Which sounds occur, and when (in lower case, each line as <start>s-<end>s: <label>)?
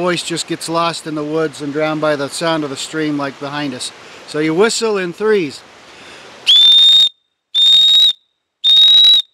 0.0s-3.9s: man speaking
0.0s-9.3s: wind
3.9s-4.2s: surface contact
4.2s-5.6s: man speaking
5.7s-6.4s: breathing
6.5s-7.1s: whistle
7.1s-7.5s: reverberation
7.5s-8.1s: whistle
8.1s-8.4s: reverberation
8.6s-9.2s: whistle